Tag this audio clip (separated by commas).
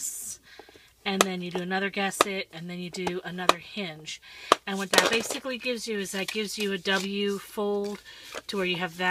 Speech